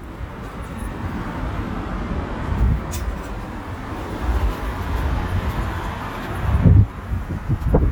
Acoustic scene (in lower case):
residential area